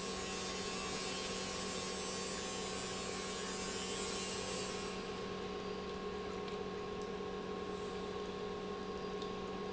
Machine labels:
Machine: pump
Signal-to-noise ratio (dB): 0 dB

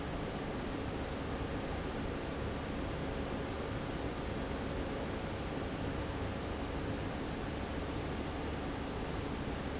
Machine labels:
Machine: fan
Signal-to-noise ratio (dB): -6 dB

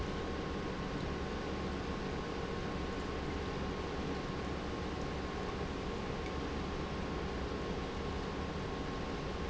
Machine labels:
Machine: pump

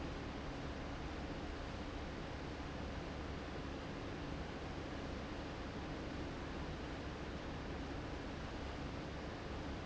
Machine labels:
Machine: fan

